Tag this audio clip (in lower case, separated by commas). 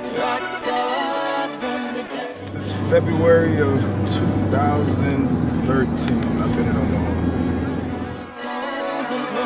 speech, music